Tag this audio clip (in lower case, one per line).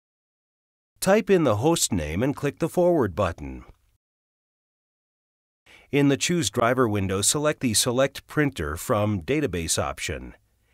speech